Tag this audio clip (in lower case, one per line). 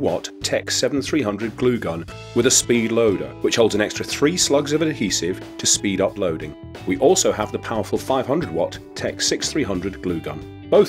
music
speech